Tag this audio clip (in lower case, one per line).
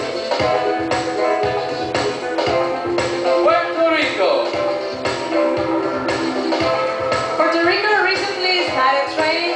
woman speaking
music
speech